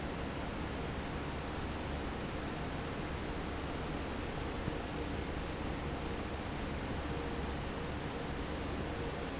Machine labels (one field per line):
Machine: fan